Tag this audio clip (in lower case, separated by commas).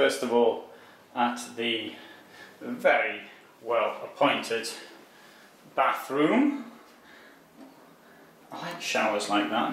inside a small room, speech